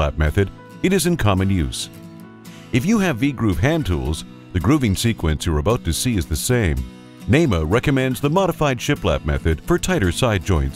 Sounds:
Music, Speech

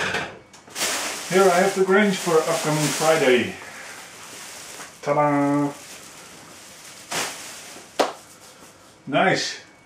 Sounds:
Speech, inside a small room

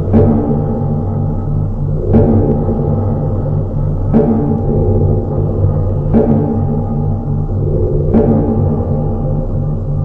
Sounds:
Music

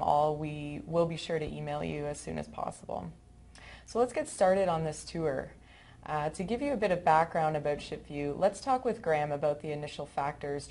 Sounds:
Speech

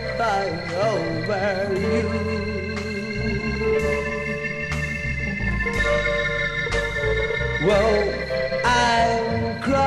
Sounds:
Music

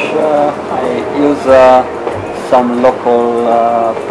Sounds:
Speech

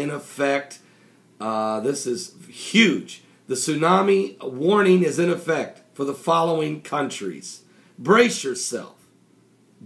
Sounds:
Speech

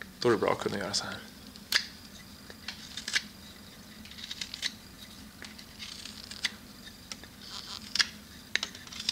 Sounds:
Speech

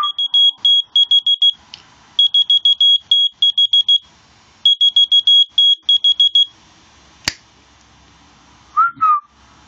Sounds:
Buzzer, Music

